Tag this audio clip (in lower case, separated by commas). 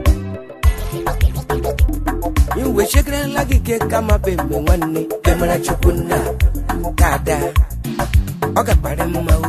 music, music of africa